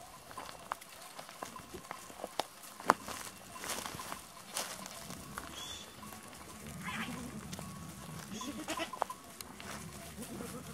A animal walks on a hard surface someone whistles and the sheep bleats in reply